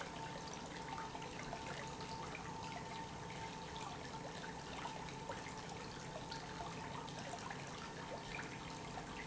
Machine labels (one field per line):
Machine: pump